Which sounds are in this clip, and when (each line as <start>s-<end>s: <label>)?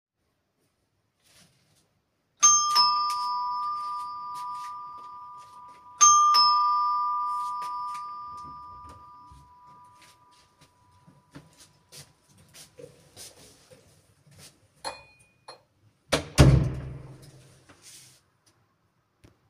1.2s-1.9s: footsteps
2.3s-11.3s: bell ringing
3.1s-6.0s: footsteps
7.2s-8.1s: footsteps
8.3s-9.0s: door
9.9s-10.7s: footsteps
11.1s-14.6s: footsteps
16.1s-17.2s: door